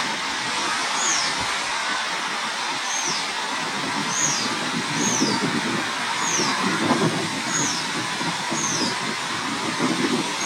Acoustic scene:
park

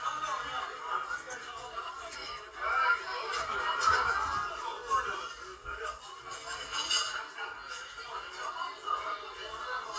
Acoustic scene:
crowded indoor space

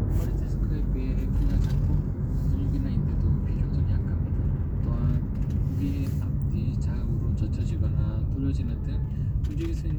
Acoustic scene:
car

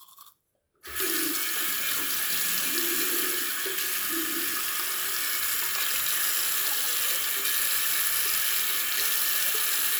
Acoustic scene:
restroom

